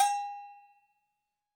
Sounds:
Bell

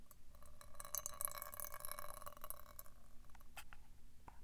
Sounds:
Liquid

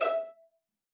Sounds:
Music, Bowed string instrument, Musical instrument

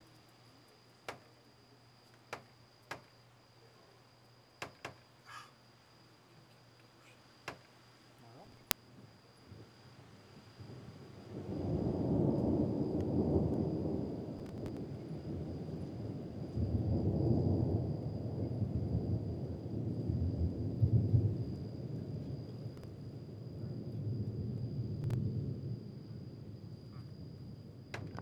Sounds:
Thunder, Thunderstorm

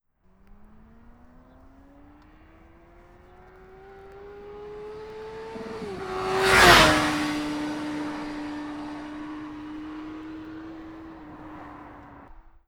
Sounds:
Motor vehicle (road), Motorcycle, Accelerating, Vehicle, Engine

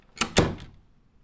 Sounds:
Domestic sounds, Slam, Door

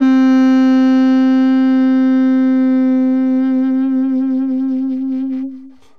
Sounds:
Wind instrument, Musical instrument, Music

